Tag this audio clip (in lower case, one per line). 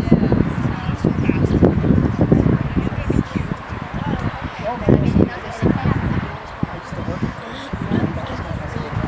speech